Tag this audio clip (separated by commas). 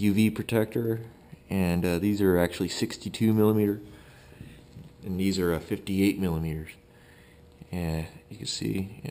Speech